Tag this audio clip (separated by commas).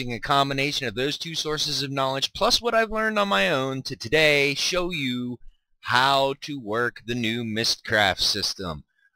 Speech, Narration